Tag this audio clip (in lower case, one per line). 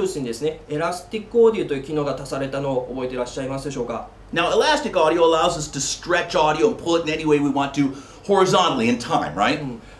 speech